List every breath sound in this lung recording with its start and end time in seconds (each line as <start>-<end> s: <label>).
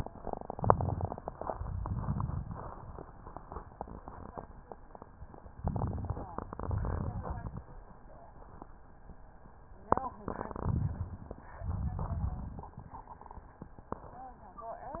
0.36-1.29 s: crackles
0.40-1.27 s: inhalation
1.39-2.77 s: exhalation
1.39-2.77 s: crackles
5.58-6.51 s: inhalation
5.58-6.51 s: crackles
6.60-7.63 s: exhalation
6.60-7.63 s: crackles
10.47-11.40 s: inhalation
10.47-11.40 s: crackles
11.63-12.70 s: exhalation
11.63-12.70 s: crackles